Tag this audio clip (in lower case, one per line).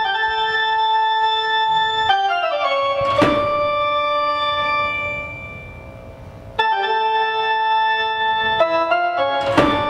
music